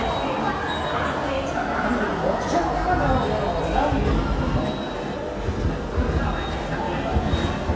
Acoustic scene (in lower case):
subway station